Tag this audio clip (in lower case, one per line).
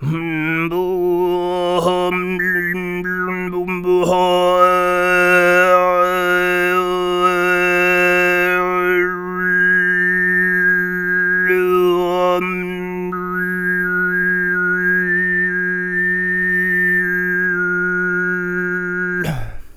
human voice
singing